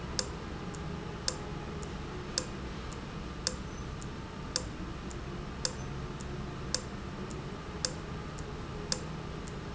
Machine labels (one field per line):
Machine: valve